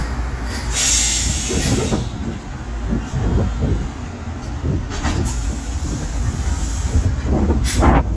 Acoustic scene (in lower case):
street